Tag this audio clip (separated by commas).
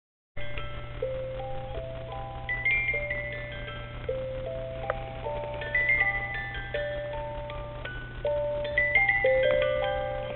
Mallet percussion, Marimba, Glockenspiel